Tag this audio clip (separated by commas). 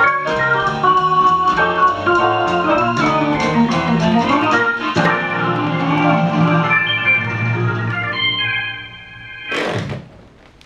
Music, Musical instrument, Accordion